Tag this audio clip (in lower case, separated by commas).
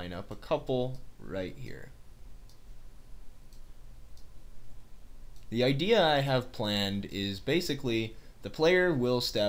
speech